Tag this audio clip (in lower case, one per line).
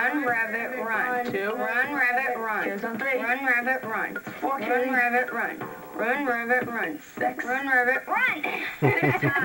speech